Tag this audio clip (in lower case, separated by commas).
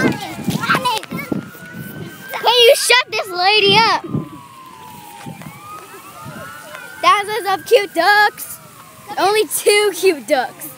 speech